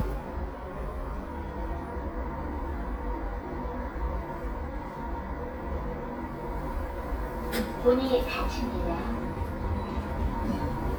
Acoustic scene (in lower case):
elevator